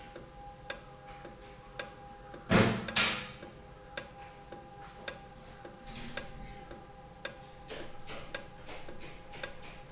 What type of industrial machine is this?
valve